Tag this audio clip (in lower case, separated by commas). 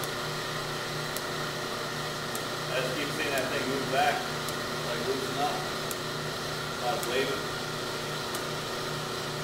speech